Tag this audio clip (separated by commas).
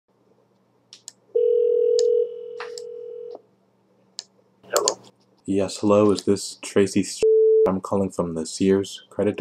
Busy signal, Speech, Telephone